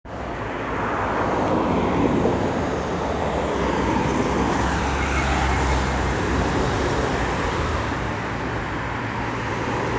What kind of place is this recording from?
street